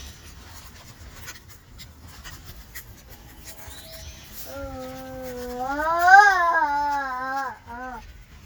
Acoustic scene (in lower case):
park